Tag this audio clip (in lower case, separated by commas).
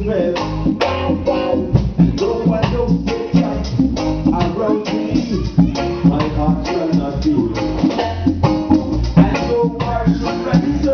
jazz, music, guitar, plucked string instrument, speech, musical instrument